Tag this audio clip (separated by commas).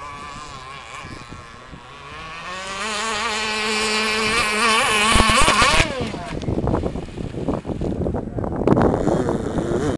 Vehicle, speedboat, Water vehicle